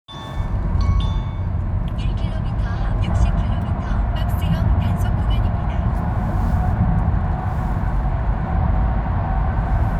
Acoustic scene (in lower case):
car